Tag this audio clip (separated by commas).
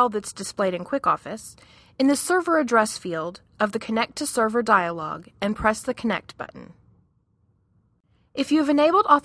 Speech